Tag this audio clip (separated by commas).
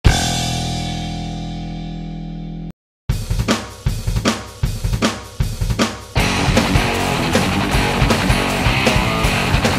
Cymbal, Hi-hat